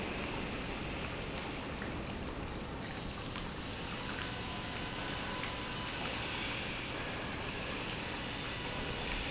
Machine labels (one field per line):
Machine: pump